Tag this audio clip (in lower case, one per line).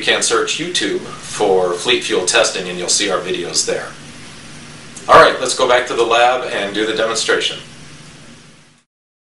speech